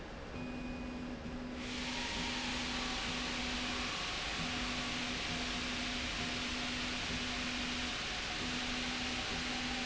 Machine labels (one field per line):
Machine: slide rail